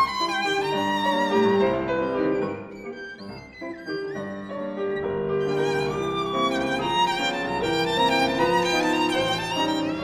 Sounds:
Music, Violin, Musical instrument

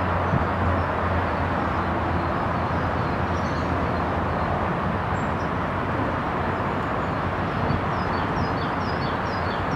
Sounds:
Animal

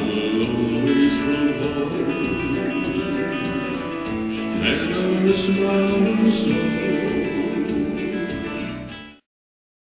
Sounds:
Music

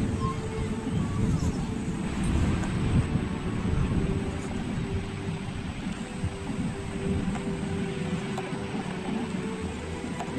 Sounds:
Music, Speech, outside, rural or natural

